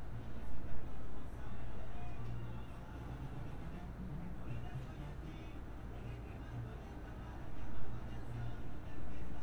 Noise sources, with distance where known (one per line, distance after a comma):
music from a fixed source